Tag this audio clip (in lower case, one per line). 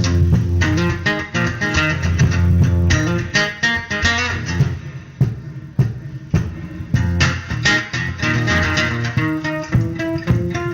music
guitar
musical instrument
acoustic guitar
plucked string instrument